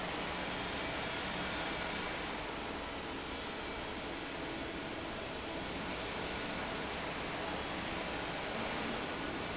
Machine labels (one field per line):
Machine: fan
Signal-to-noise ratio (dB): -6 dB